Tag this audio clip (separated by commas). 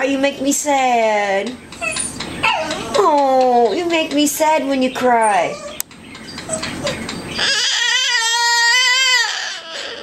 Speech, pets, Baby cry